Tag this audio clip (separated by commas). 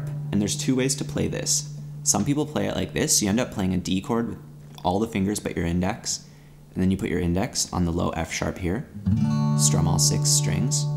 Acoustic guitar, Speech, Music